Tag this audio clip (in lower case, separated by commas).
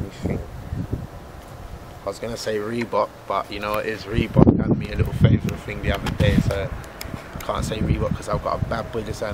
speech